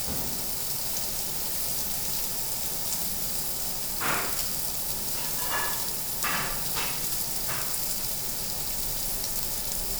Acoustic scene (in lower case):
restaurant